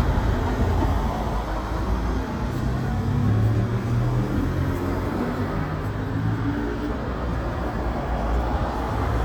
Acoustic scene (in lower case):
street